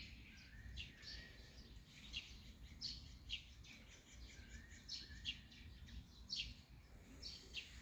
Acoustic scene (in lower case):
park